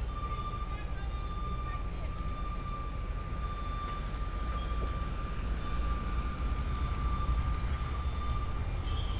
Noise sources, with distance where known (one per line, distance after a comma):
reverse beeper, near
unidentified human voice, far